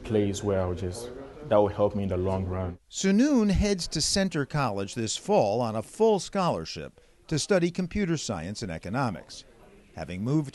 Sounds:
Speech

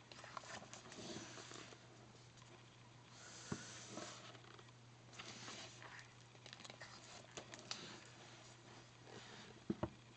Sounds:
swoosh

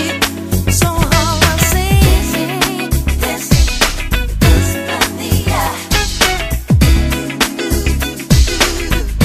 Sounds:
Music, inside a large room or hall, Soul music

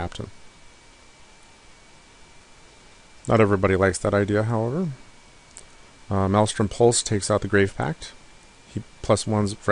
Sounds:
Speech

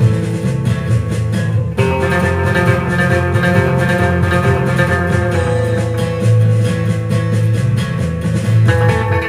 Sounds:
Guitar, Plucked string instrument, Musical instrument

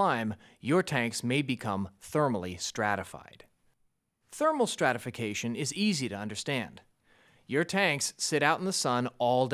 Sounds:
Speech

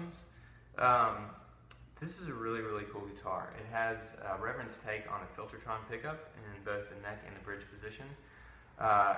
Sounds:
Speech

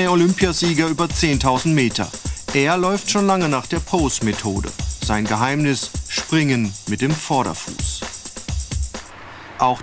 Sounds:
Speech, Music

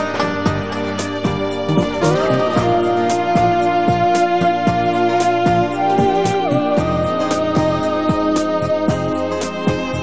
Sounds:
Background music, Music

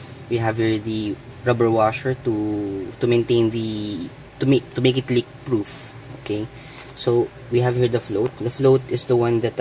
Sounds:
Speech

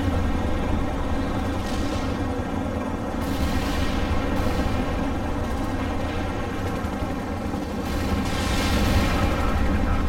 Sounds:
gunfire, Artillery fire, Machine gun

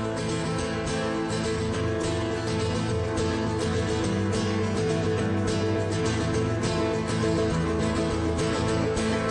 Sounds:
Music

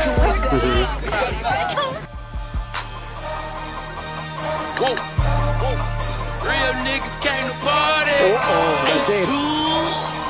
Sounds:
Music, Speech

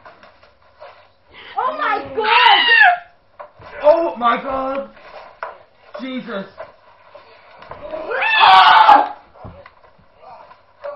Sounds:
Speech

